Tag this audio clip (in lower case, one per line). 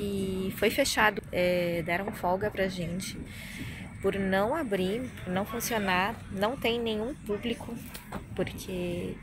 people battle cry